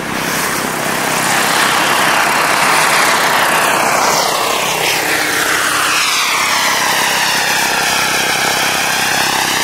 Large helicopter approaching